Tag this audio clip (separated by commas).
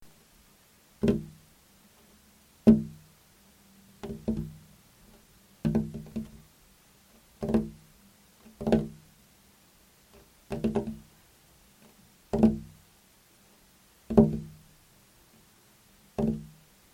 Tap